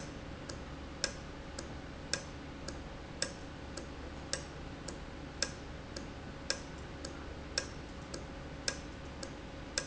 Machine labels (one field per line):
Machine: valve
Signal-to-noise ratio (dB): 0 dB